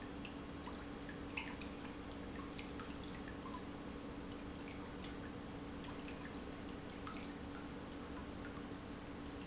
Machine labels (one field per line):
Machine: pump